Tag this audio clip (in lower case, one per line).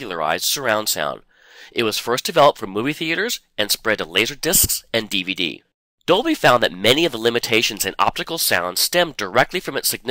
speech